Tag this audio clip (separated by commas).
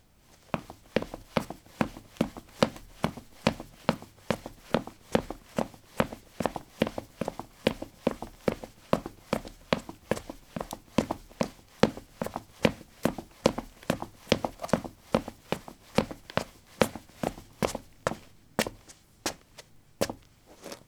Run